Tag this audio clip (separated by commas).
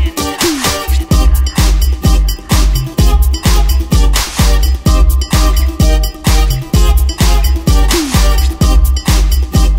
Music, Disco